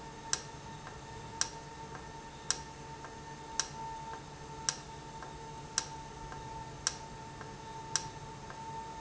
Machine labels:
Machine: valve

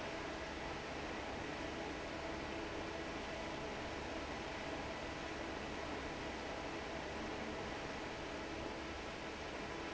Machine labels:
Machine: fan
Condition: normal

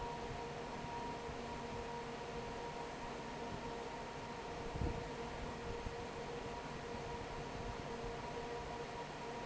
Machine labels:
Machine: fan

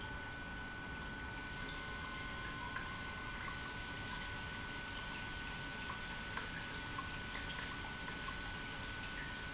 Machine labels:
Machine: pump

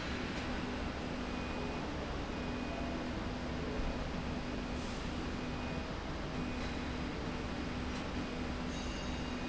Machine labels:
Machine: slide rail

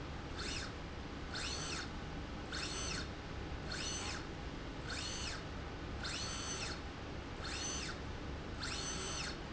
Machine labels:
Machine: slide rail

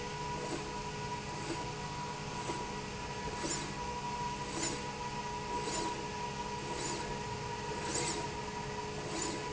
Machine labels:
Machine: slide rail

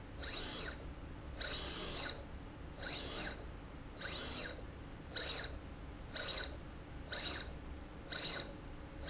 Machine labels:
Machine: slide rail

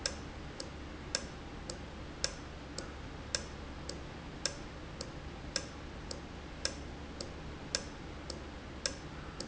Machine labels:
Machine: valve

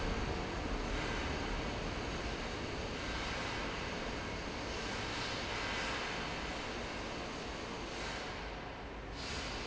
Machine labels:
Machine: fan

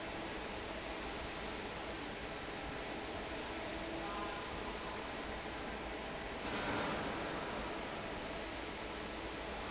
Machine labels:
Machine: fan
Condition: normal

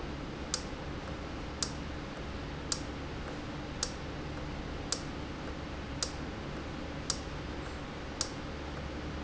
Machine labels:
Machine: valve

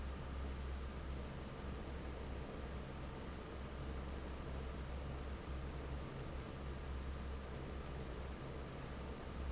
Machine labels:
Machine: fan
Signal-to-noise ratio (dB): 6 dB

